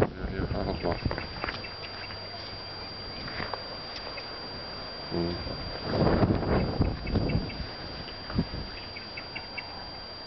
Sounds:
Animal, Speech

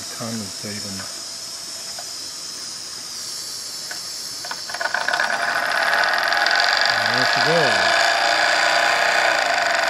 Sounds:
Hiss, Steam

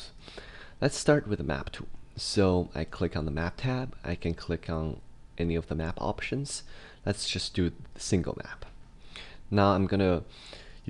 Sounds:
Speech

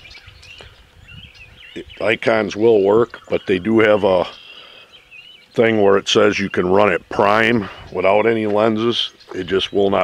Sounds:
Speech, Environmental noise

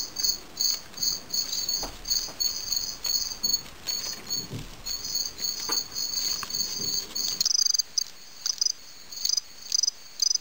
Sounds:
Bird

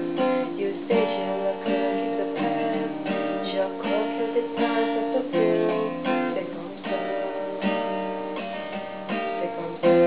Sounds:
Acoustic guitar, Musical instrument, Plucked string instrument, Music, Strum, Guitar

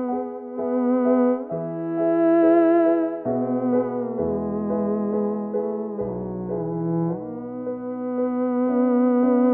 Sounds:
playing theremin

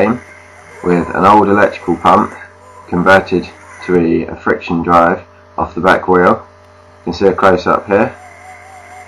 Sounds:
Speech, Bicycle, Vehicle

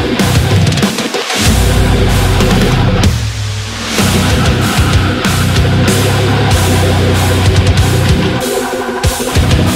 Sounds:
Music, Angry music

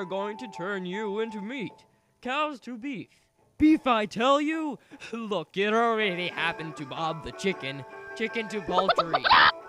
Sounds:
Music, Speech

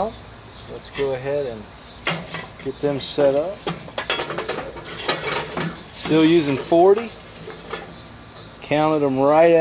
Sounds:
Speech

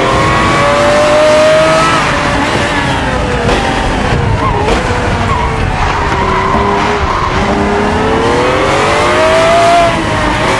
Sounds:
Rustle

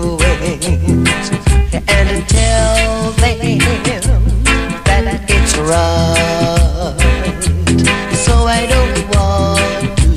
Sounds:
Music, Reggae

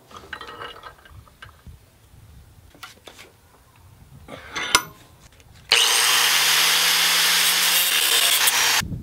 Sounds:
forging swords

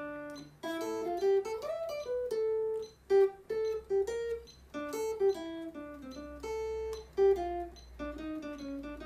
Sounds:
Musical instrument, Music, Guitar, Plucked string instrument

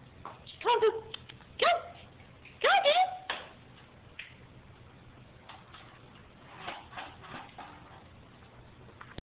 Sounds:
Speech

